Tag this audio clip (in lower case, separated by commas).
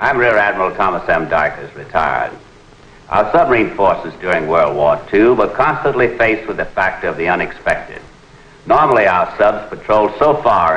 speech